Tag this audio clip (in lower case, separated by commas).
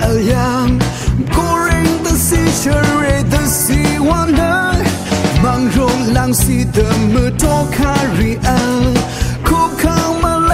music, middle eastern music, background music